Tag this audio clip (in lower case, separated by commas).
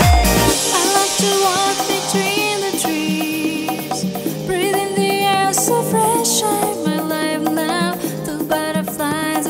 music